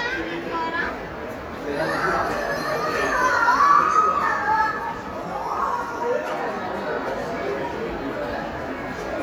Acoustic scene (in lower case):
crowded indoor space